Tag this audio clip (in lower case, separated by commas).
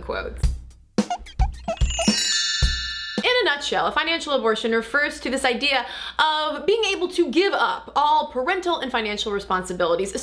speech, music